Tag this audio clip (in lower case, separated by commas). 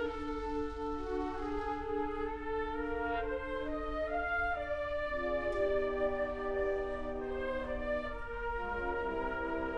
music